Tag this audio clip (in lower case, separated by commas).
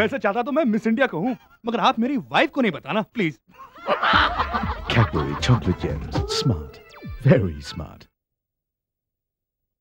music, speech